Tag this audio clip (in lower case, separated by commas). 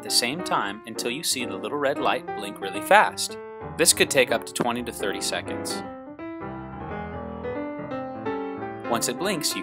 speech, music